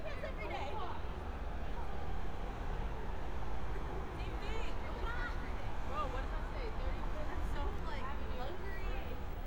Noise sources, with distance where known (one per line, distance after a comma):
person or small group talking